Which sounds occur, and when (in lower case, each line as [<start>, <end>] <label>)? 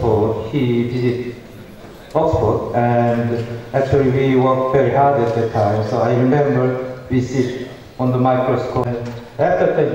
[0.00, 1.42] male speech
[0.00, 9.94] background noise
[0.00, 9.94] crowd
[2.05, 7.75] male speech
[2.08, 2.14] tick
[3.36, 3.42] tick
[7.95, 9.22] male speech
[8.83, 9.23] generic impact sounds
[9.38, 9.94] male speech